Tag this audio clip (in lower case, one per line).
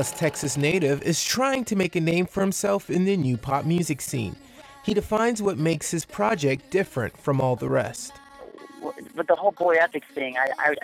speech